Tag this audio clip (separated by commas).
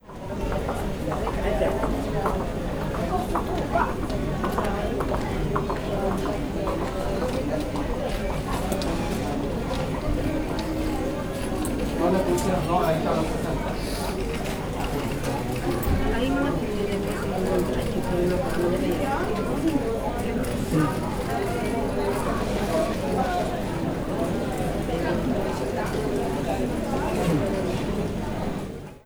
Human group actions, Chatter